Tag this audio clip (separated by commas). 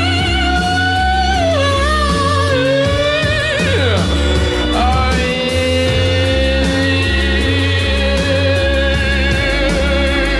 Music